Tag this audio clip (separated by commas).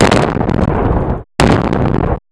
Boom, Explosion